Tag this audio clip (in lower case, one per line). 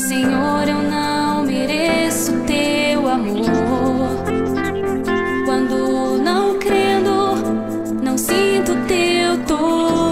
music